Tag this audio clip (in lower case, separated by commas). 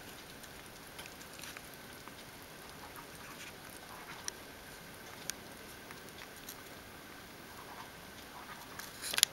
rats, patter, mouse pattering